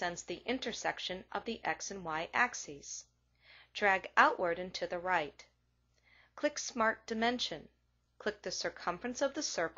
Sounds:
Speech

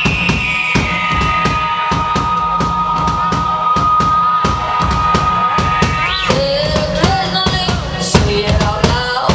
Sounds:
Music

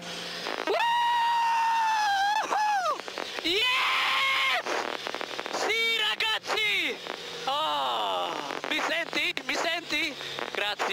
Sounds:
Speech, Radio

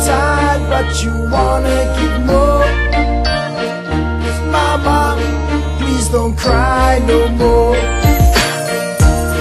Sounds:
Background music, Music

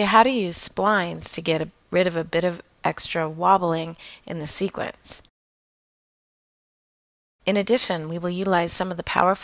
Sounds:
Speech

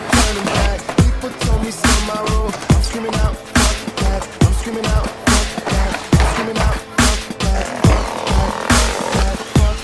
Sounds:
Dubstep, Music, Speech

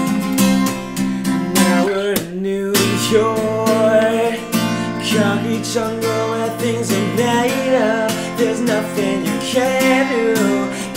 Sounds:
Guitar, Music, Acoustic guitar, Musical instrument, Plucked string instrument

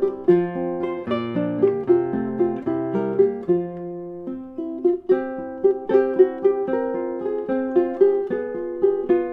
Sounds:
Musical instrument, Plucked string instrument, Strum, Music, Guitar

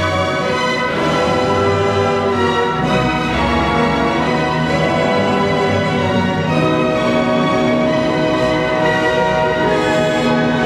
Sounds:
fiddle, Music, Musical instrument

